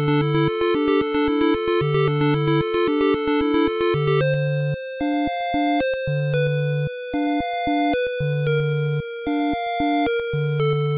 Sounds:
Music

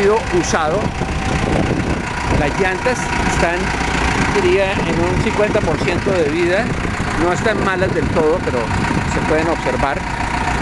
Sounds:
Speech

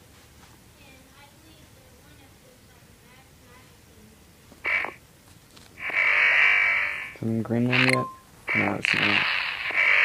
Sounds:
inside a small room, Speech

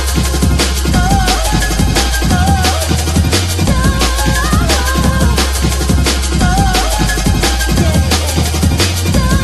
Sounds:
Music, Sampler

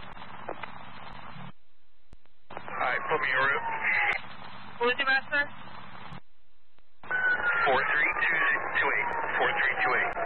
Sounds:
police radio chatter

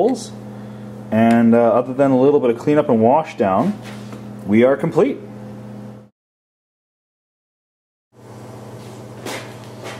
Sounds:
Speech

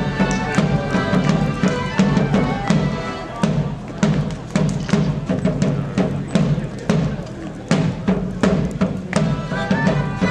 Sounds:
Traditional music, Fire, Speech, Music

